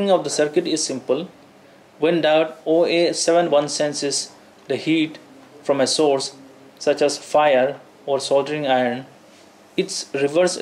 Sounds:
speech

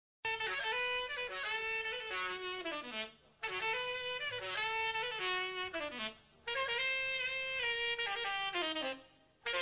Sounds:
saxophone
playing saxophone
brass instrument

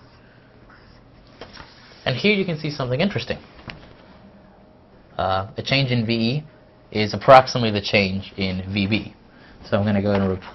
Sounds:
speech

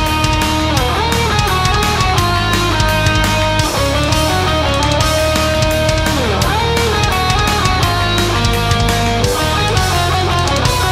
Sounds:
electric guitar
musical instrument
plucked string instrument
music

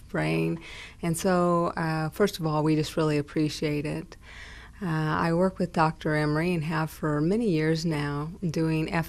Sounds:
speech

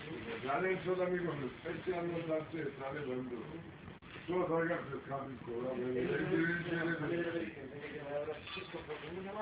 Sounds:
speech

